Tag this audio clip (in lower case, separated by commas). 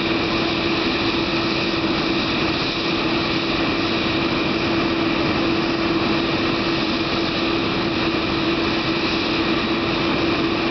engine, vehicle, heavy engine (low frequency), aircraft, idling